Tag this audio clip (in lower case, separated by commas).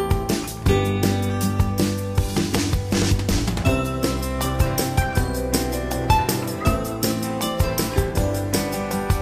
music